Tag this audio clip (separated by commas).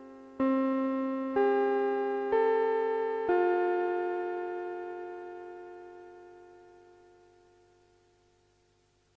Music